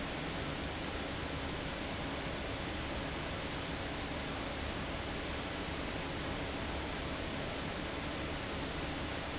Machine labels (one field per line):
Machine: fan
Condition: abnormal